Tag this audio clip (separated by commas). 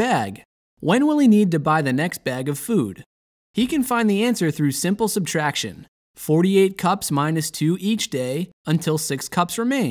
Speech